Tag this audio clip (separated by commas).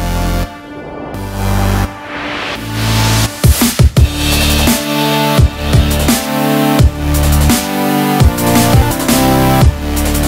Music